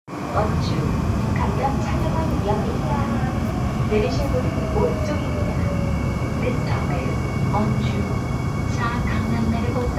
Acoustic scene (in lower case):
subway train